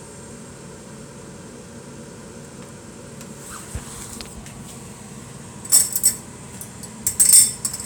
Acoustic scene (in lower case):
kitchen